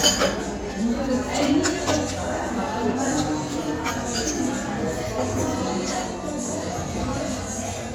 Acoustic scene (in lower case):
restaurant